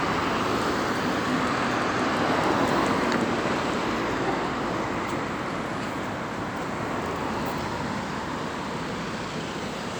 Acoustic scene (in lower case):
street